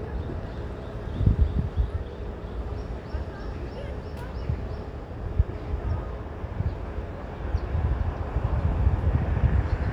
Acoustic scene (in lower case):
street